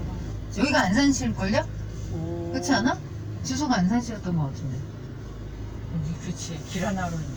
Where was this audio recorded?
in a car